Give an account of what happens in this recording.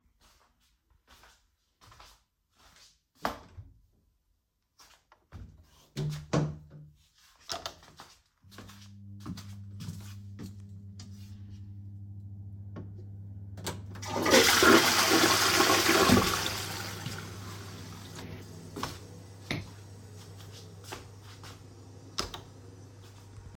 I went to the toilet, turned on the light, flushed down the toilet, walked out and switched off the light.